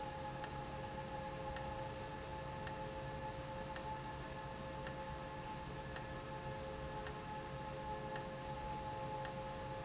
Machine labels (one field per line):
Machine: valve